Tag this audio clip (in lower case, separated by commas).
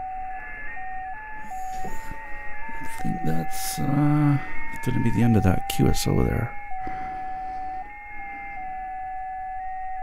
music, speech